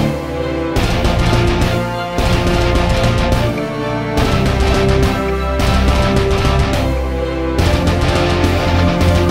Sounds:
Soundtrack music, Music

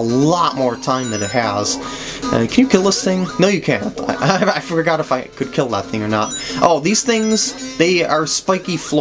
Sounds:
Music, Speech

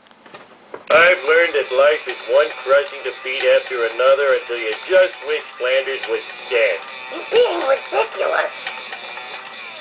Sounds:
Speech

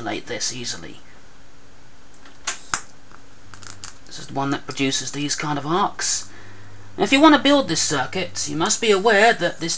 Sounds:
Speech

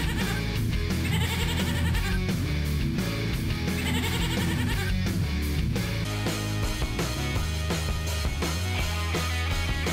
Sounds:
Bleat, Music, Sheep

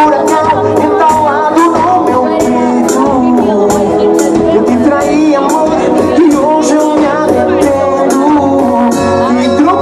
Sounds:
Happy music, Music, Speech

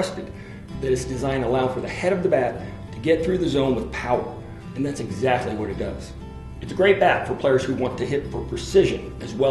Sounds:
Music, Speech

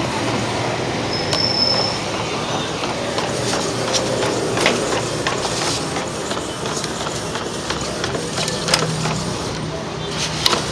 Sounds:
printer printing

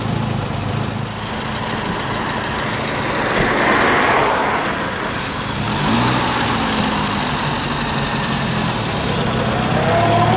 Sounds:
Vehicle, Car

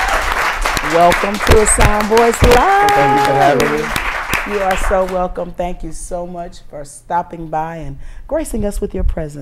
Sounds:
inside a small room, Speech

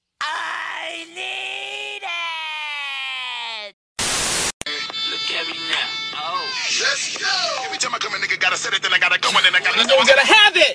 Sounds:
Speech, Music

